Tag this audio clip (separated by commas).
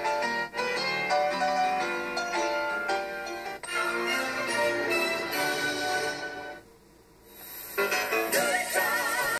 Television, Music